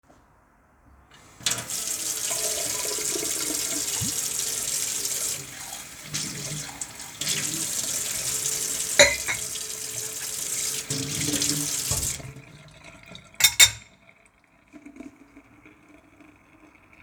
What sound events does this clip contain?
running water, cutlery and dishes